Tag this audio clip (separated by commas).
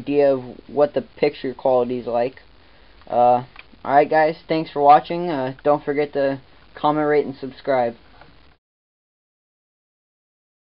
Speech